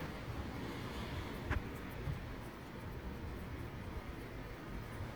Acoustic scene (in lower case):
residential area